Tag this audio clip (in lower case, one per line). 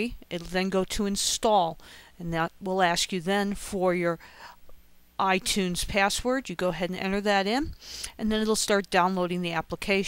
speech